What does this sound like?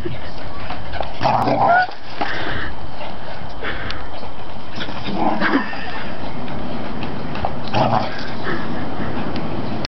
Dog growling while someone whispers and laughs